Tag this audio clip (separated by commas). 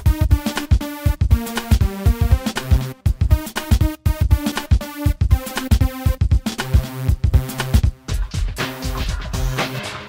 Music